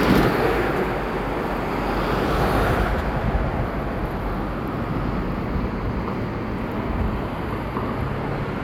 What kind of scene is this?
street